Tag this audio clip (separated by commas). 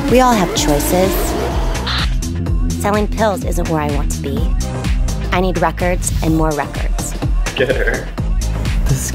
Speech, Music